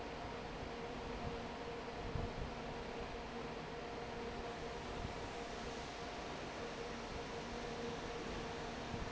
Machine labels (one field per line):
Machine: fan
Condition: normal